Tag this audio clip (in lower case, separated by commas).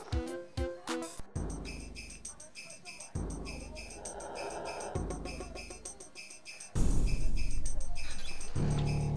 music